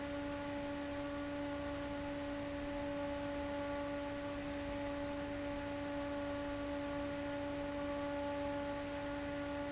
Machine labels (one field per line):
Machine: fan